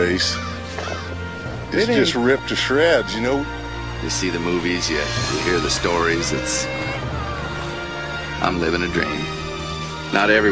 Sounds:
speech, music, animal

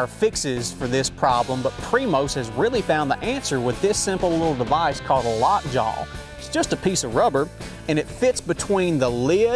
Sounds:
music, speech

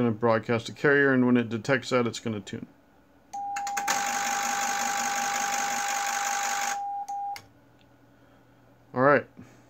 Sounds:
inside a small room, speech

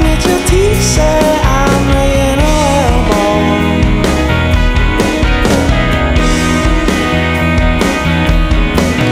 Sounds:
music

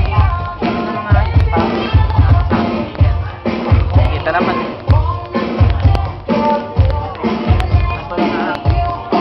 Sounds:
crackle, speech, music

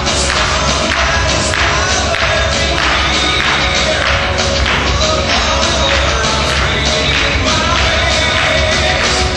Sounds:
rock and roll, music

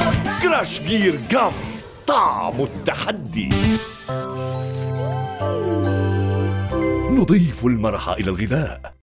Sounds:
speech, music

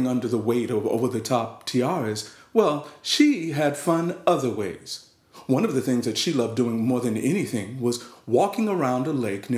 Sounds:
speech

